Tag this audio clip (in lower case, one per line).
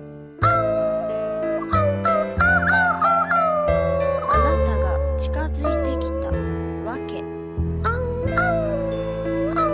speech
music